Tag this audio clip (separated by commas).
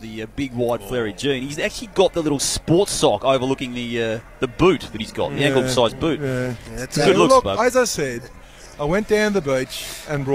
Speech